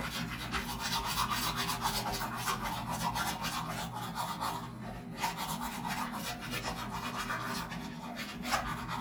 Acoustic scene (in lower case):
restroom